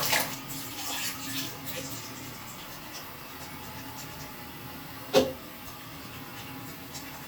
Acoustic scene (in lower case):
restroom